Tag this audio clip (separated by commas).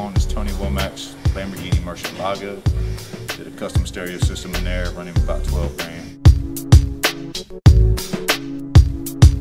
Speech, Music